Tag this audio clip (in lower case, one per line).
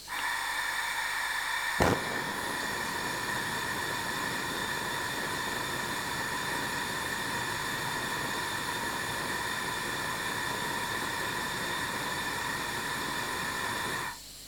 fire
hiss